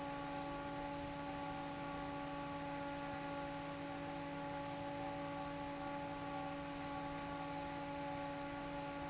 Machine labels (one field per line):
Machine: fan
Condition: normal